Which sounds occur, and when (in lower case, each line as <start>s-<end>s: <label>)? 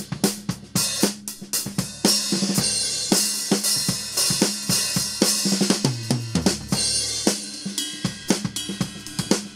0.0s-9.5s: music